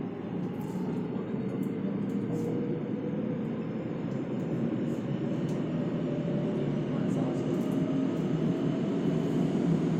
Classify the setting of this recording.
subway train